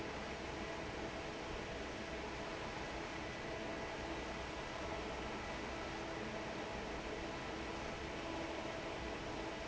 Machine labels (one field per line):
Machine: fan